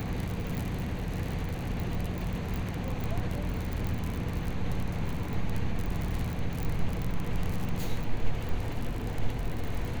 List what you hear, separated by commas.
large-sounding engine